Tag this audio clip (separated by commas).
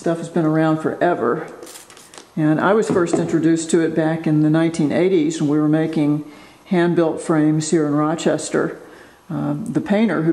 Speech